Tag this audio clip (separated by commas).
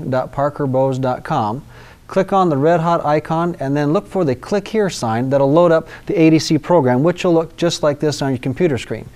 Speech